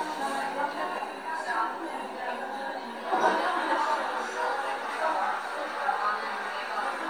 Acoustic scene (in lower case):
cafe